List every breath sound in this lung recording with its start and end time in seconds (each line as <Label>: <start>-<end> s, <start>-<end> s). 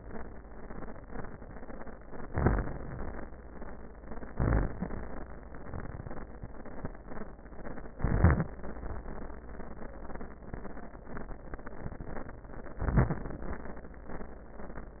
Inhalation: 2.27-3.25 s, 4.29-5.31 s, 12.76-13.79 s
Crackles: 2.27-3.25 s, 4.29-5.28 s, 7.91-8.67 s, 12.78-13.77 s